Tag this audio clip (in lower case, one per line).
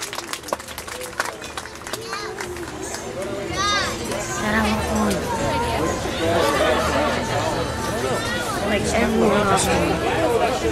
jingle bell
speech